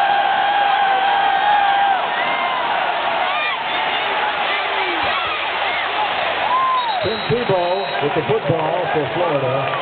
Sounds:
speech

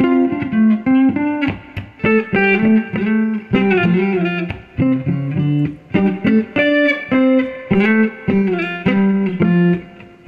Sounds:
distortion, music

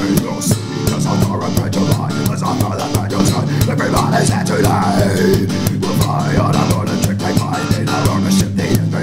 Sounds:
music

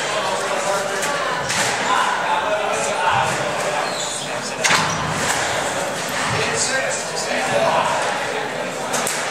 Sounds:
inside a public space, speech

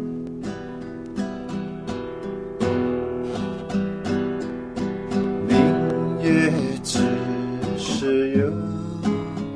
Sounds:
musical instrument, guitar, music, acoustic guitar, plucked string instrument, strum

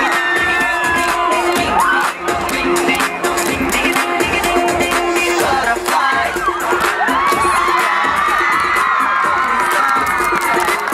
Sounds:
music

